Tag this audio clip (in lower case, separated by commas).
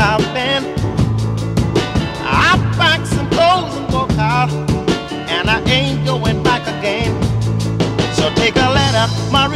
music